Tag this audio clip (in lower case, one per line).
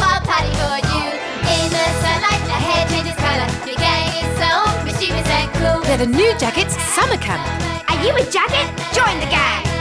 music
speech
kid speaking
music for children